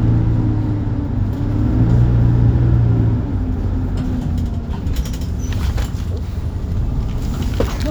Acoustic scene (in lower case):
bus